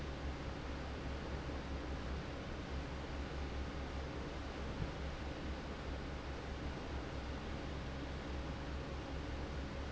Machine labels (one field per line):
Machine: fan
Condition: normal